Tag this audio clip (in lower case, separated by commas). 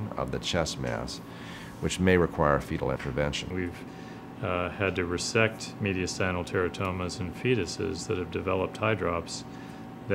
speech